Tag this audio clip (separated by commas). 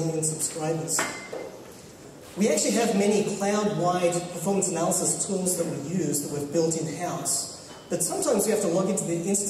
Speech